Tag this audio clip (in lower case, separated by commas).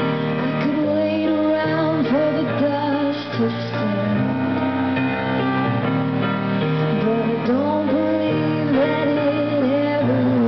music